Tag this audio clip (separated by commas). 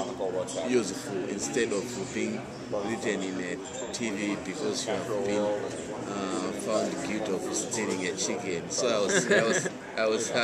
Speech